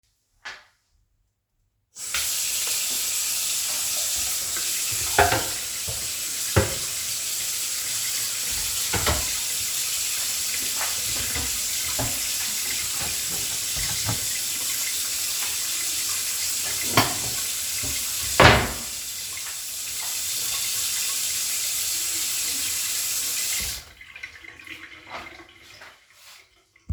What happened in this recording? I turn on the tap and clean a plate, then I put it away in the cupboard